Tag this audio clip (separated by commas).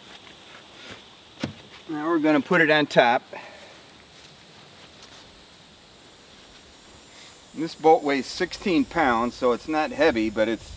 Speech